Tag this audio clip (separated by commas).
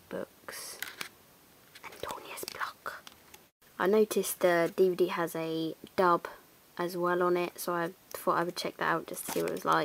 inside a small room, Speech